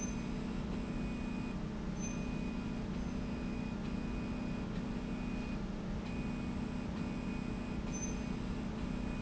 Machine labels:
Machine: slide rail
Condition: normal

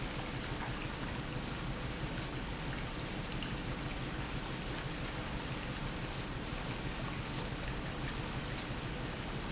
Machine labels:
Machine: pump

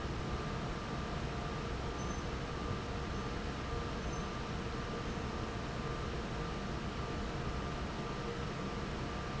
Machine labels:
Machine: fan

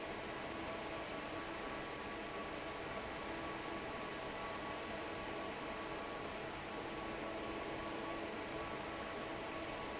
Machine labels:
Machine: fan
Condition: normal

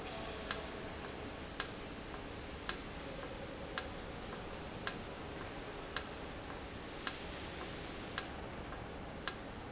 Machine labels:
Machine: valve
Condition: normal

